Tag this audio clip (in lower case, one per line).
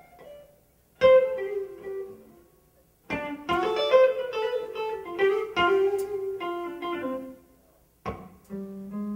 plucked string instrument
guitar
music
musical instrument
strum